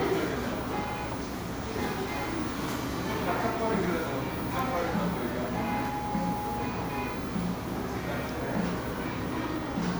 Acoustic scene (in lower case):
cafe